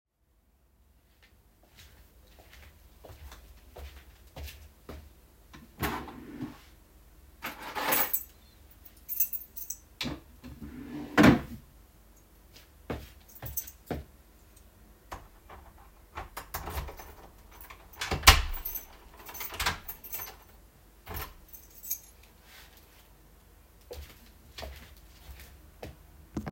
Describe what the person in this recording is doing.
I walked to a drawer or wardrobe, opened it, and picked up a keychain. Then I closed the drawer, walked to the room door, and opened and closed it.